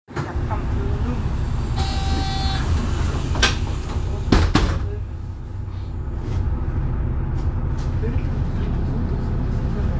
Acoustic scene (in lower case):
bus